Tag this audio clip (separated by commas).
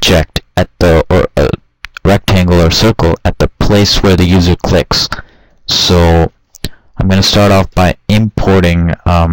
Speech